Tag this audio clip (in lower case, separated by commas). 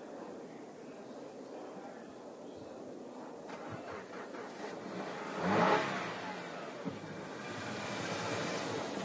car